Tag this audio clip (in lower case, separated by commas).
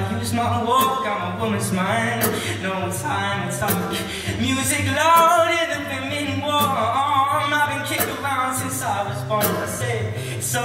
male singing, music